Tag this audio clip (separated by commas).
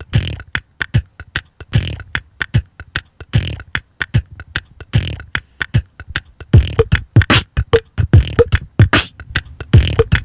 Music